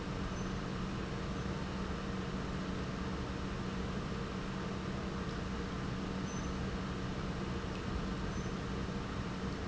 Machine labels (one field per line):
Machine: pump